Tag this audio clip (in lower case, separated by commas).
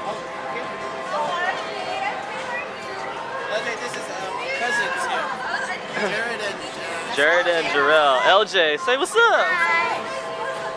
inside a public space, speech